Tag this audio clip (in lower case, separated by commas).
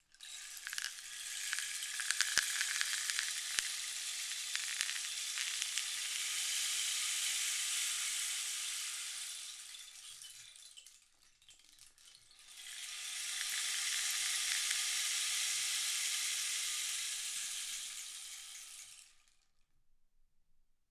percussion, musical instrument, music, rattle (instrument)